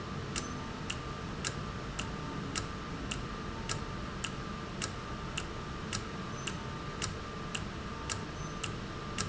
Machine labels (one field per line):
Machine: valve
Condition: normal